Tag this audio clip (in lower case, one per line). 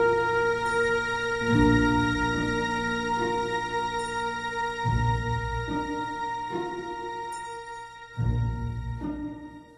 music